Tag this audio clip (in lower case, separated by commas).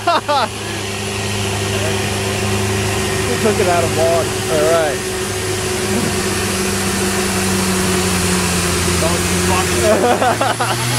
speech, vehicle